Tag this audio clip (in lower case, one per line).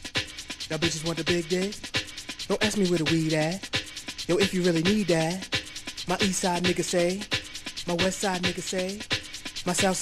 music